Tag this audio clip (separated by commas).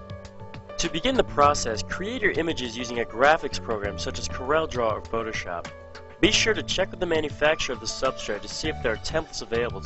Music, Speech